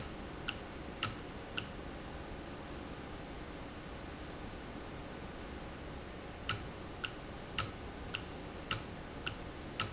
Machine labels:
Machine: valve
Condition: normal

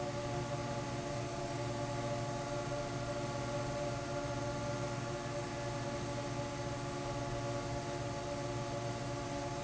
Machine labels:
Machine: fan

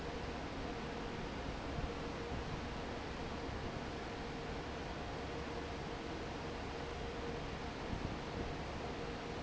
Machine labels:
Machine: fan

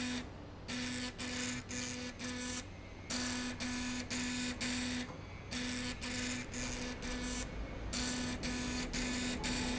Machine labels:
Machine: slide rail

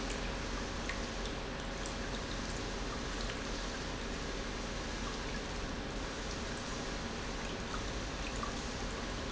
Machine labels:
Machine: pump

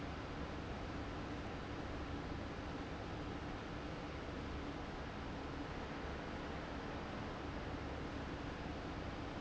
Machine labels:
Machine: fan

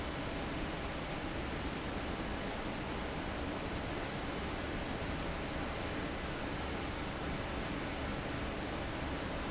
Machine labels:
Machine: fan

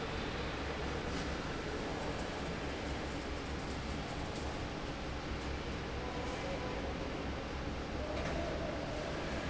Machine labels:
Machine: fan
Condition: normal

